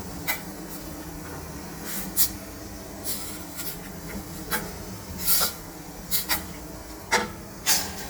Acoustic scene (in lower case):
kitchen